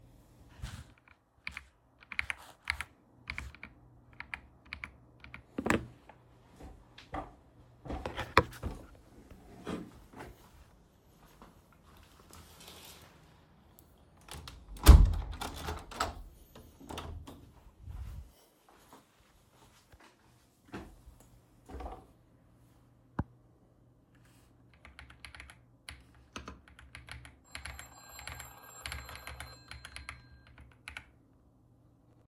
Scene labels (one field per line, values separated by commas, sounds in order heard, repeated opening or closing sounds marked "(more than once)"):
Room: bedroom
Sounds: keyboard typing, footsteps, window, phone ringing